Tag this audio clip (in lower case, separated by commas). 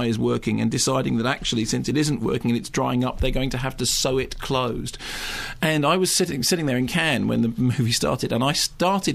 speech